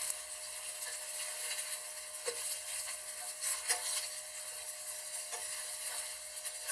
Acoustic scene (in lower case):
kitchen